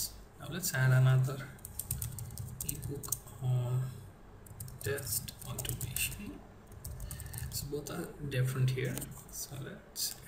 An adult male speaking while typing